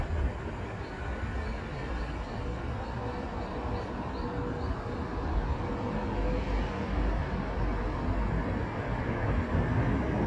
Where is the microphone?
on a street